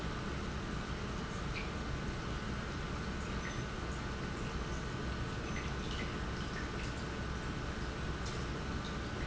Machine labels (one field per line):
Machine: pump